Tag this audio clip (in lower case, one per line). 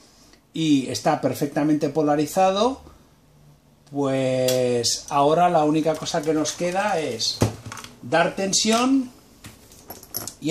speech